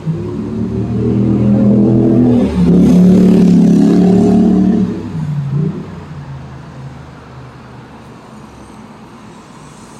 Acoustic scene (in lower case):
street